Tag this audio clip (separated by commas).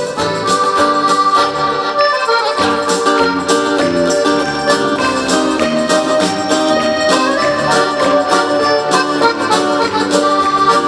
playing accordion